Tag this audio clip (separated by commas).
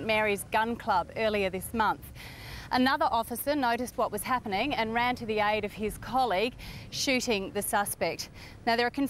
Speech